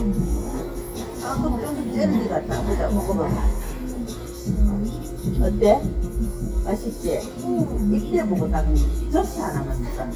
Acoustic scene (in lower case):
restaurant